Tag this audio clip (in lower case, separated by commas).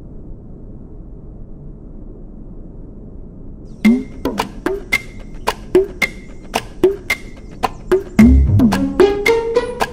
airplane